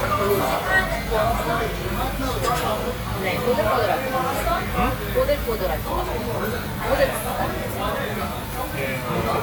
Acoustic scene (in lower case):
crowded indoor space